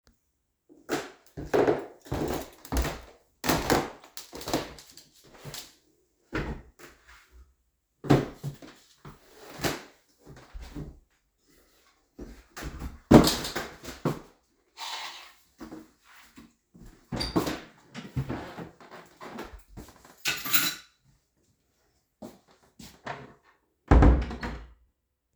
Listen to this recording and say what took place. I walked up the stairs and removed my shoes. I put on my house slippers and opened the doors. I turned on the light, placed the keys down, and then closed the door.